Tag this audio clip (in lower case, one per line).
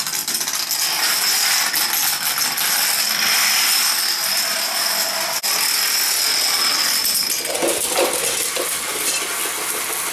inside a large room or hall